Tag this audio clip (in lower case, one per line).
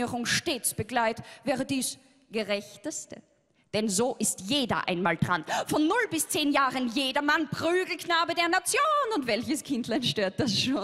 speech